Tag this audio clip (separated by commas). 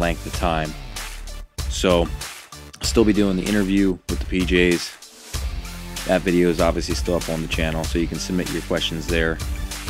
Music, Speech